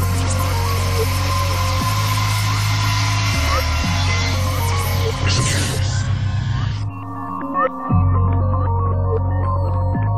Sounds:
Music, Speech

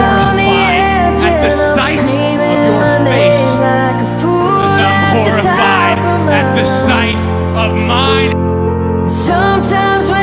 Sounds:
Speech, Music

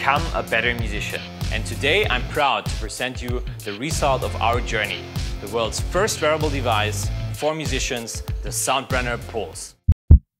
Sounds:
Music, Speech

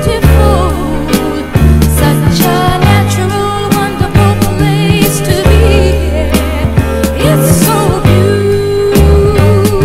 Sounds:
Music, Soul music

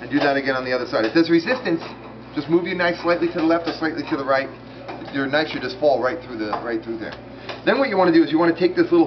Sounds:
Speech

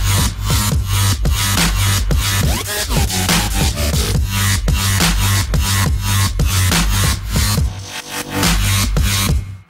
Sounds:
Music, Electronic music, Dubstep

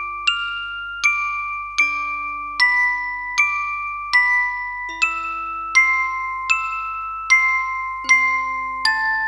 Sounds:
Music, Musical instrument

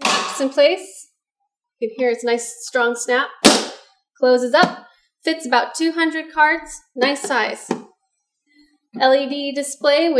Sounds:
Speech

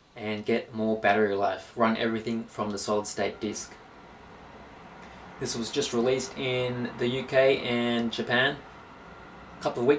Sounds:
Speech

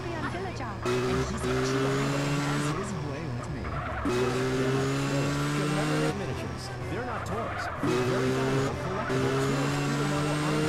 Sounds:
Speech, Sound effect

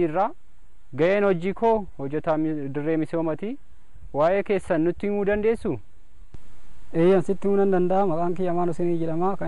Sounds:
Speech

